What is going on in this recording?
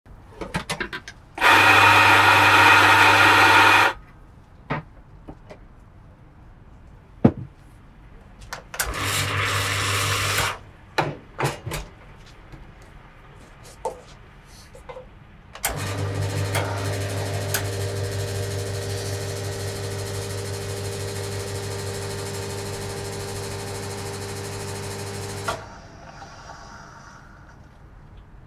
Coffee machine running while water flows.